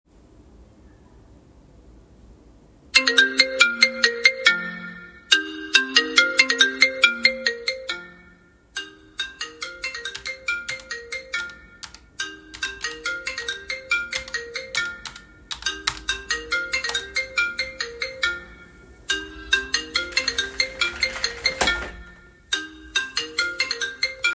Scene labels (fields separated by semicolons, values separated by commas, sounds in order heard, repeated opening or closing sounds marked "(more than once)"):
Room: office; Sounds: phone ringing, keyboard typing, window